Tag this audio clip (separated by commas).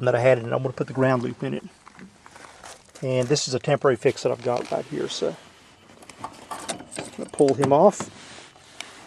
Speech